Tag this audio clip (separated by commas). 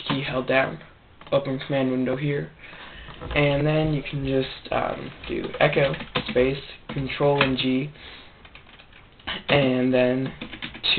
Speech